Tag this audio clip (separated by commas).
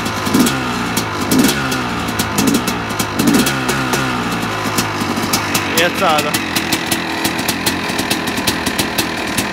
Speech, Vehicle, Accelerating